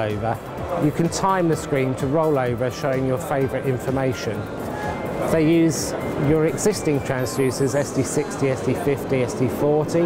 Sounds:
music, speech

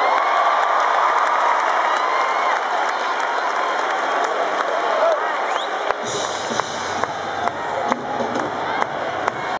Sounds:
speech

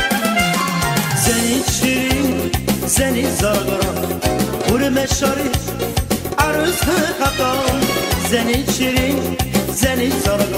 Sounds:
folk music, music

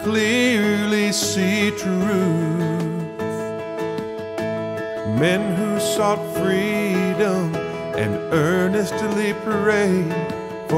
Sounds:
music

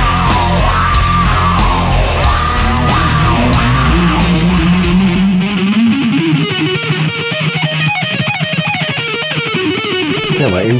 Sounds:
heavy metal, inside a large room or hall, guitar, music

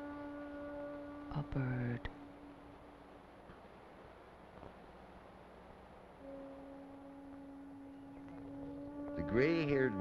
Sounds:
wind rustling leaves

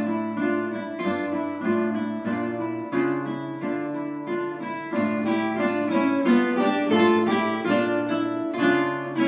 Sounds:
guitar, music, musical instrument, plucked string instrument

